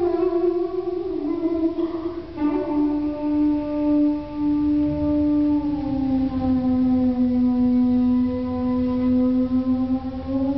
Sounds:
inside a large room or hall, music

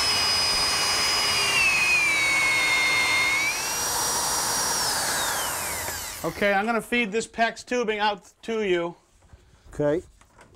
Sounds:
speech

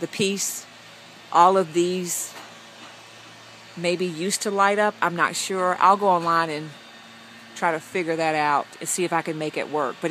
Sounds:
outside, urban or man-made, speech

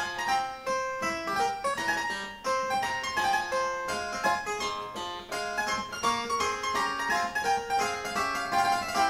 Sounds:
playing harpsichord

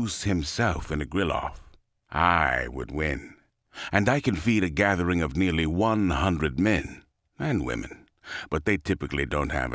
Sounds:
speech

